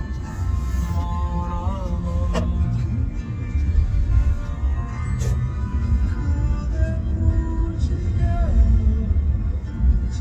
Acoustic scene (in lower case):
car